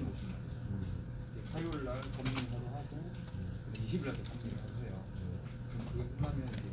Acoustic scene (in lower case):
crowded indoor space